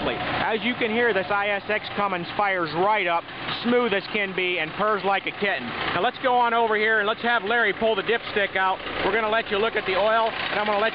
Trucks running in the background with a man talking